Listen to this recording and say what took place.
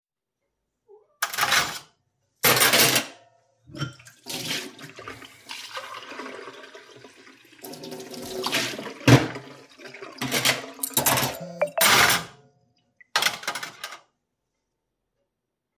I was washing dishes while the water was running when my phone received a notification and my cat meowed.